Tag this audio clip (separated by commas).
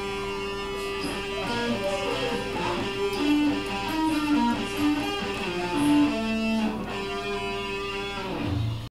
Music, Speech